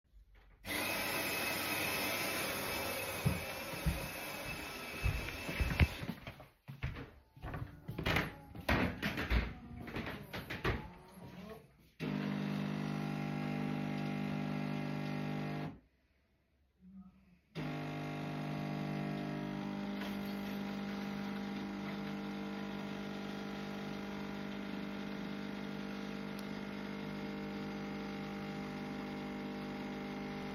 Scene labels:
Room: kitchen, hallway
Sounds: coffee machine, footsteps

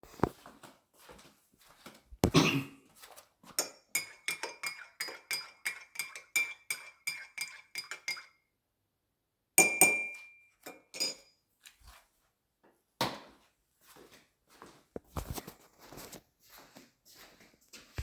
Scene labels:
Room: kitchen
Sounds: footsteps, cutlery and dishes

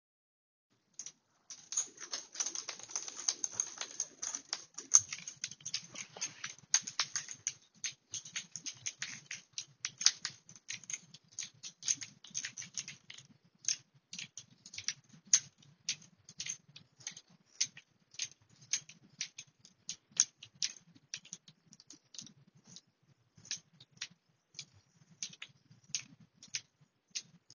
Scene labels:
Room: hallway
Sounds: keys

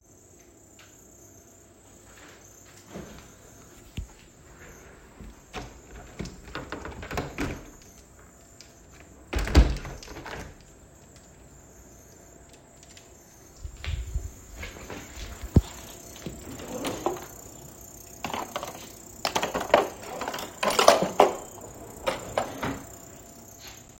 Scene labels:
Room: kitchen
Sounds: window (more than once), wardrobe or drawer

